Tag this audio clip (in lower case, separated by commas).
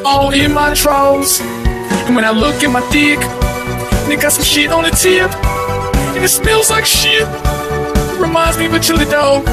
music